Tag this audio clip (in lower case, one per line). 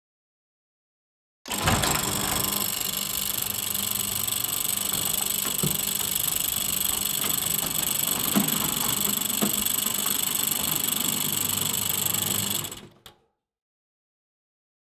engine